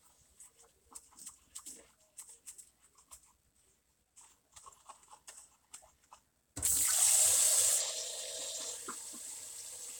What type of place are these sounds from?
kitchen